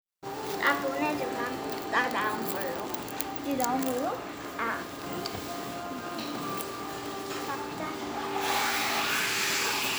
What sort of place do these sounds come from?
cafe